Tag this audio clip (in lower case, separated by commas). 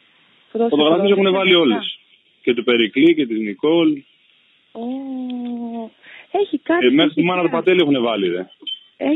speech